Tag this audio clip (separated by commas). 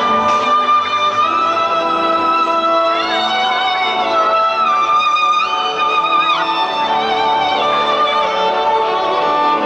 Music, fiddle, Musical instrument